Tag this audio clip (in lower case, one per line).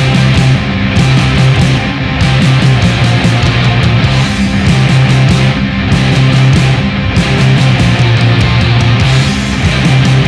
heavy metal
music
rock music